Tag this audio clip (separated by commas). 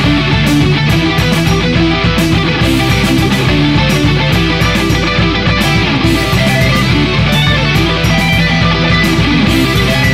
Musical instrument, Music, Strum, Electric guitar, Guitar, Plucked string instrument